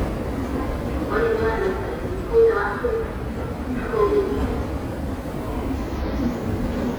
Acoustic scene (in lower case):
subway station